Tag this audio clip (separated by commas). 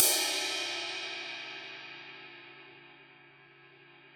Musical instrument, Percussion, Cymbal, Crash cymbal, Music